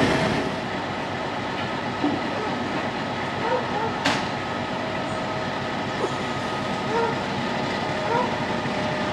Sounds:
Vehicle, Train

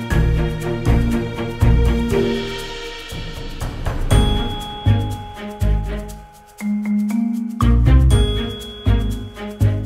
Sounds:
Music

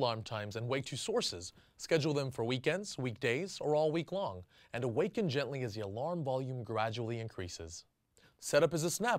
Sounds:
Speech

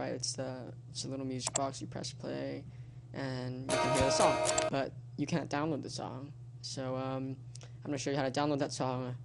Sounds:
Music, Speech

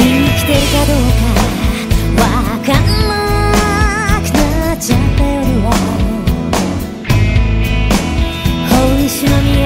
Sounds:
Music

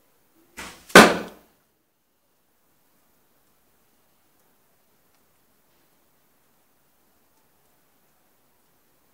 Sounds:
Arrow

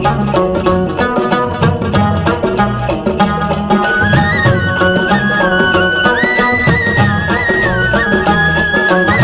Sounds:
Music, Folk music

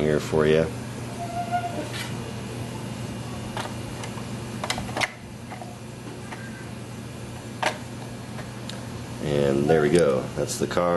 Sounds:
Speech

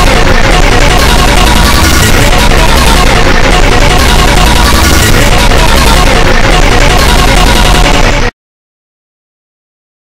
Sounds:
Music

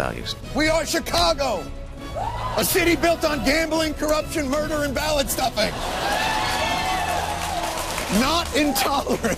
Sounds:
Speech, Music

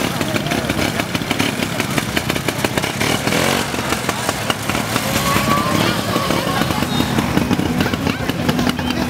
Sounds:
driving snowmobile

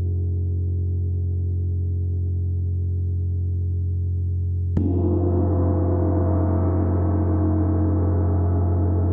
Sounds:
playing gong

